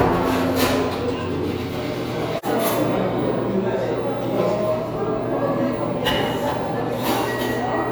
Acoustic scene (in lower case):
cafe